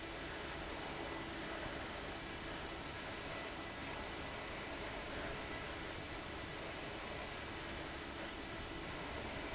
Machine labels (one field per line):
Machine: fan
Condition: abnormal